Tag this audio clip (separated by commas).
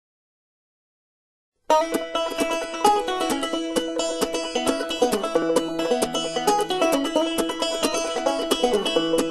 Music, Banjo